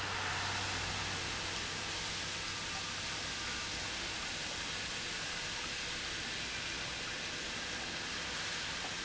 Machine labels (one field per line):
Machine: pump